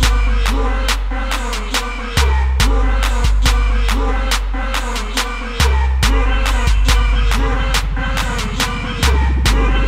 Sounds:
Hip hop music, Music

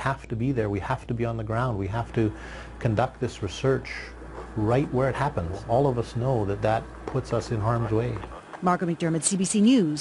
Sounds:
Speech

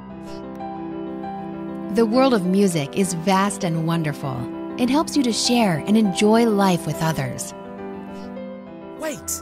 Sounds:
Music, Background music, Speech

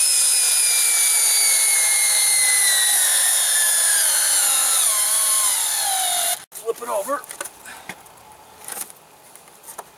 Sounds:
Speech

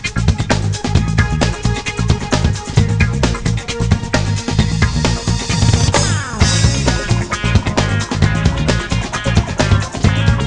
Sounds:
Music

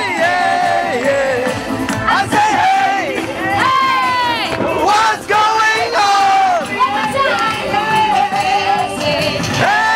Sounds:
Music, Music of Latin America

